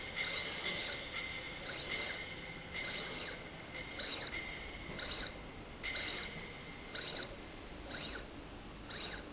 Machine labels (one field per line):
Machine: slide rail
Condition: abnormal